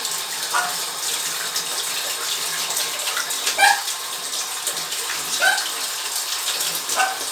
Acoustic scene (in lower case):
restroom